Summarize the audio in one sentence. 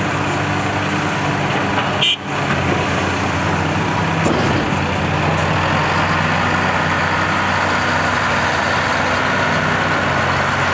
A vehicle engine idles and a horn is beeped